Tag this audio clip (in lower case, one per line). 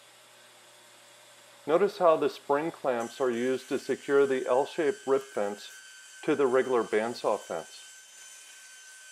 speech